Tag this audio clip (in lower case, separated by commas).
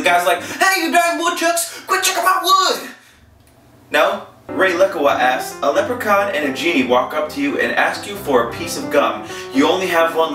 music, speech